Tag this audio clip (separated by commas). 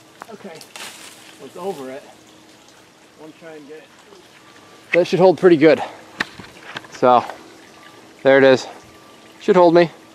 Trickle, outside, rural or natural, Speech